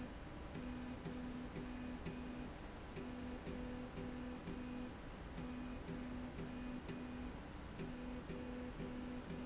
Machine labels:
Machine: slide rail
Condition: normal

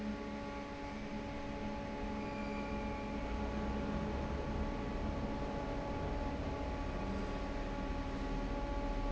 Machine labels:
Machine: fan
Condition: normal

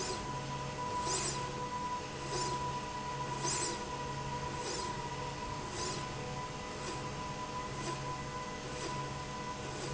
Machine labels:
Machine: slide rail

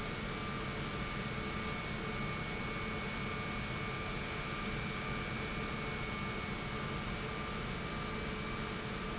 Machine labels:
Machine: pump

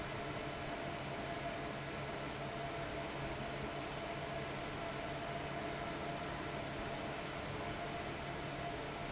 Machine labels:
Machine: fan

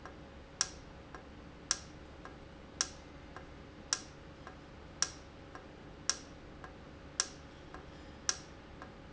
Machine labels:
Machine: valve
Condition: normal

